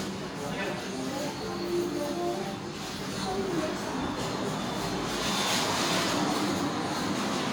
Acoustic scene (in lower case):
restaurant